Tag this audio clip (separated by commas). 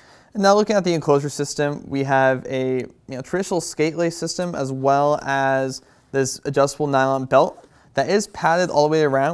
Speech